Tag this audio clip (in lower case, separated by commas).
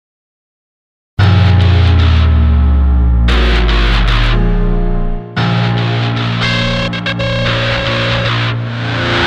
heavy metal, drum, music, bass drum, rock music, musical instrument, drum kit